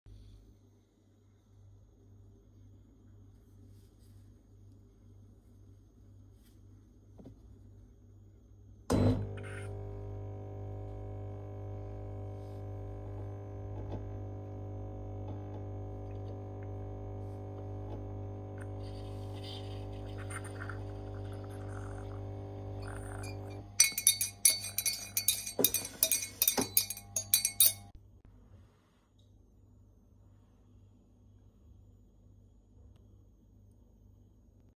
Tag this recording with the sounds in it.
coffee machine, cutlery and dishes